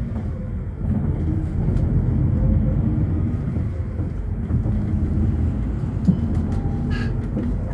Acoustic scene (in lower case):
bus